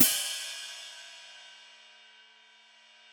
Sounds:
Music, Cymbal, Musical instrument, Hi-hat, Percussion

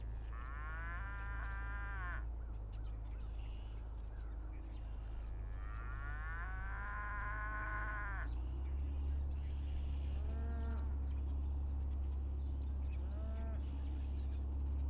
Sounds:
Animal, livestock

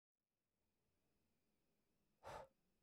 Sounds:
Respiratory sounds, Breathing

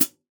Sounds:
Music, Hi-hat, Cymbal, Musical instrument, Percussion

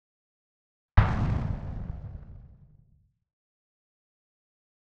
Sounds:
Explosion

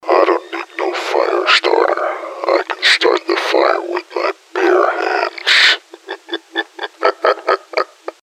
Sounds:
Laughter, Human voice

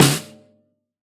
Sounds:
Music, Percussion, Drum, Musical instrument, Snare drum

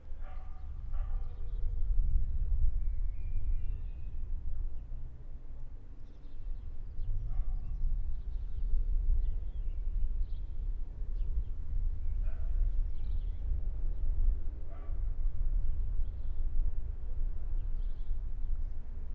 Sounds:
Animal, Dog, pets, Bark

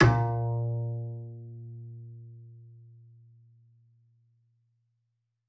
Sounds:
Musical instrument, Music, Bowed string instrument

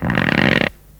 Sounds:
Fart

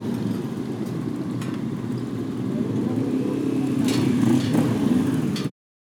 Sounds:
Motor vehicle (road), Motorcycle, Vehicle

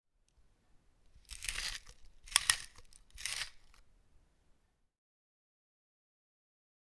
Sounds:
Chewing

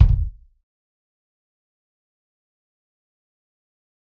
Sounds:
Bass drum, Music, Percussion, Drum, Musical instrument

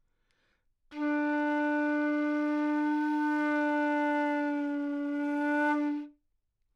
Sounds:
woodwind instrument, Music, Musical instrument

